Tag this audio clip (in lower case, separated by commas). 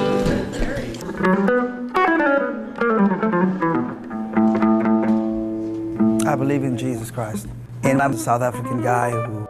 speech, music